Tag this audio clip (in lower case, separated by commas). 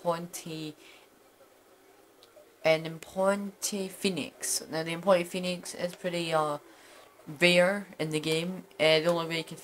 speech